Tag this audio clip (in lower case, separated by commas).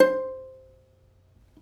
plucked string instrument, music, musical instrument